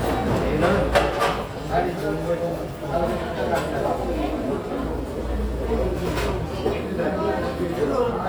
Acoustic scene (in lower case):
crowded indoor space